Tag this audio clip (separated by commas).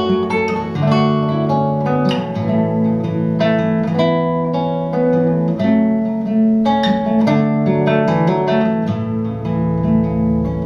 Guitar, Musical instrument, Plucked string instrument, Mandolin